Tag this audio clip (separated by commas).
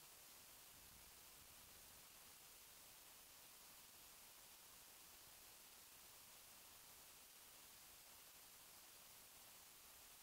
Silence